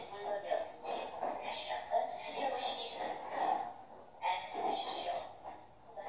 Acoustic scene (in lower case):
subway train